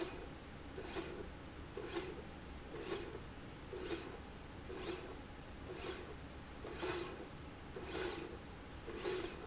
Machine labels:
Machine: slide rail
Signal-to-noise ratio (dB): 6 dB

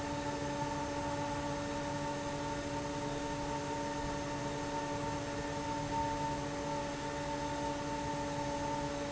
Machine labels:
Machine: fan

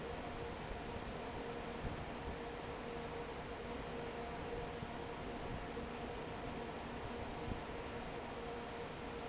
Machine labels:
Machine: fan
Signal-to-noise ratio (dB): 6 dB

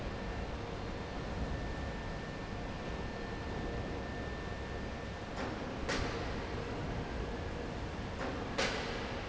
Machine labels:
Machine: fan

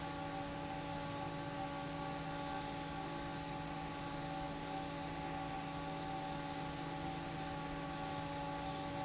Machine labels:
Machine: fan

